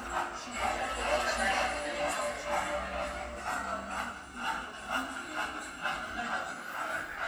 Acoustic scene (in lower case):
cafe